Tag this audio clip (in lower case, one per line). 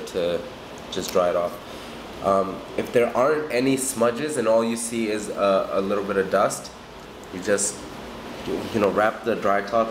speech